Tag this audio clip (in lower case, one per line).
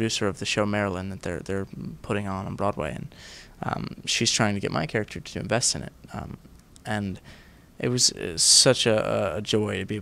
speech